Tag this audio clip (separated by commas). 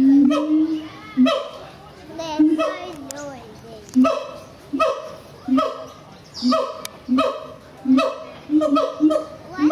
Speech